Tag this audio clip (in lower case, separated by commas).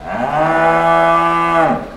livestock, animal